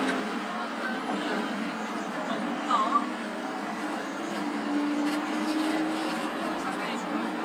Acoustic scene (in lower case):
bus